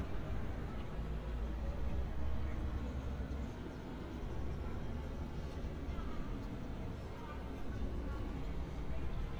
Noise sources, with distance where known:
person or small group talking, far

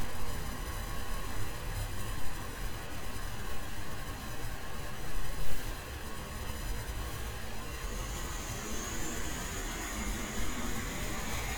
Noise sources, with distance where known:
engine of unclear size

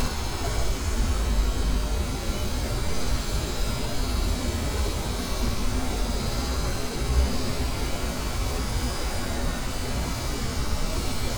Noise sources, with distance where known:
small-sounding engine, near

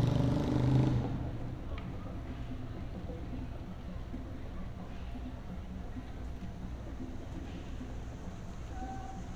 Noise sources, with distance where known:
medium-sounding engine, near
music from a fixed source, far

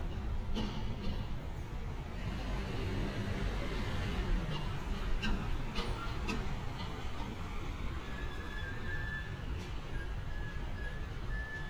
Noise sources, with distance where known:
medium-sounding engine

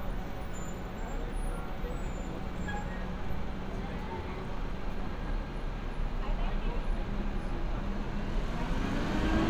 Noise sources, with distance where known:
large-sounding engine, near
person or small group talking, far

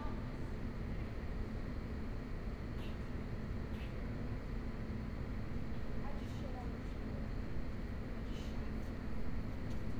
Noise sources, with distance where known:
person or small group talking, far

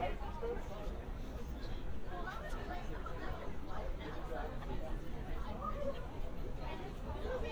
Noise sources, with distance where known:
unidentified human voice

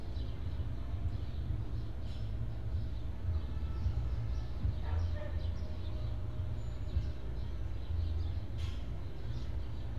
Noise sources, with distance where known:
car horn, far
music from an unclear source, far

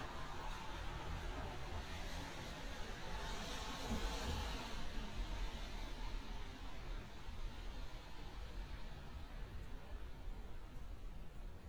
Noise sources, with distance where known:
engine of unclear size

